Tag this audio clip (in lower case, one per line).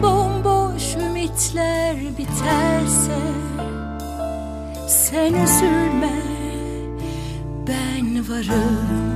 music